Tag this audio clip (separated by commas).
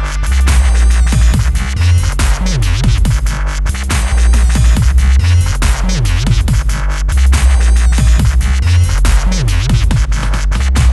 Dubstep, Music, Electronic music